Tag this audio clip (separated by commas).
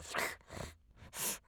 Respiratory sounds